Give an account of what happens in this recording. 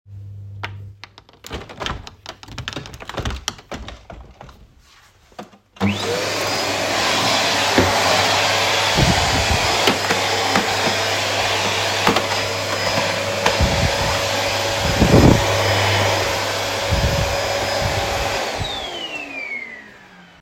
I walked over and opened the living room window. I then turned on the vacuum cleaner and started vacuuming.